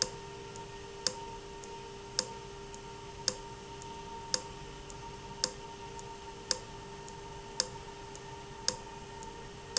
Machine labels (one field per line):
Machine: valve